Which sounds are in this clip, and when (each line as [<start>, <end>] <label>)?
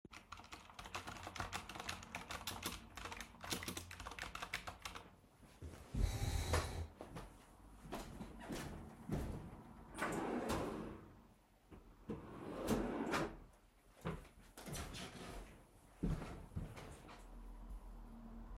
[0.12, 5.27] keyboard typing
[7.92, 9.79] footsteps
[10.01, 11.36] wardrobe or drawer
[12.11, 13.40] wardrobe or drawer
[14.55, 17.25] footsteps